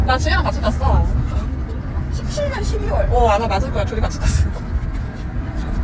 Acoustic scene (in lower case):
car